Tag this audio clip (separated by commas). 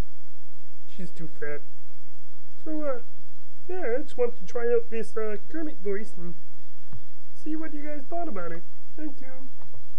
Speech